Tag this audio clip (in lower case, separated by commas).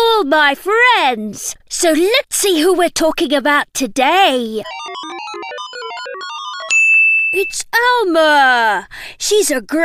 speech